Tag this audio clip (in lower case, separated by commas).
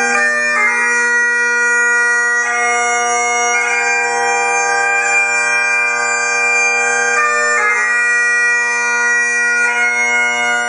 wind instrument, bagpipes